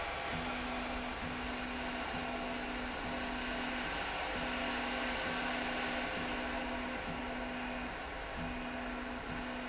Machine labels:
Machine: slide rail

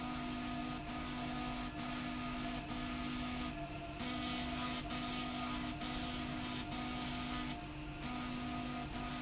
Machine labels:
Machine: slide rail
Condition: abnormal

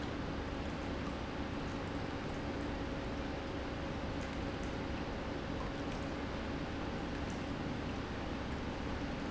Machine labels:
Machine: pump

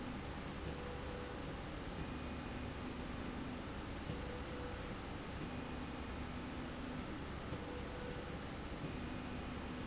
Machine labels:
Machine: slide rail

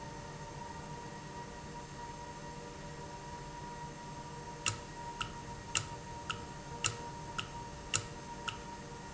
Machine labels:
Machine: valve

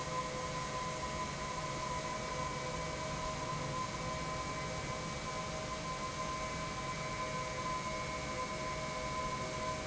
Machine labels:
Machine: pump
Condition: normal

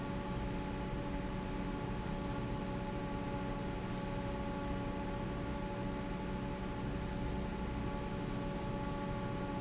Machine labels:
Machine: fan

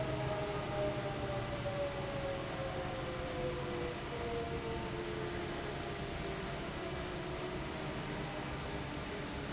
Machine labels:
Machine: fan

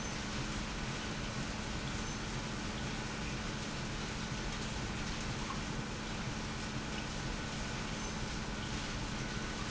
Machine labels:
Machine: pump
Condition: normal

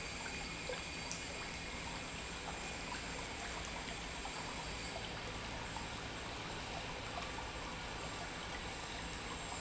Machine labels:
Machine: pump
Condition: normal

